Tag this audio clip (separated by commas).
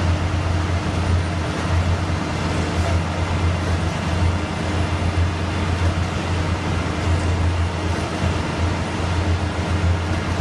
Vehicle